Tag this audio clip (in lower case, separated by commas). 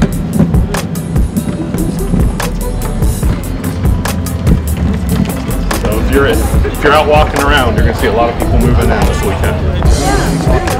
music, speech